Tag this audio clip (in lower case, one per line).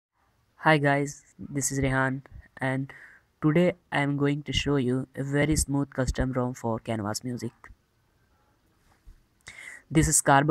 inside a small room
speech